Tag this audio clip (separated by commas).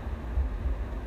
Wind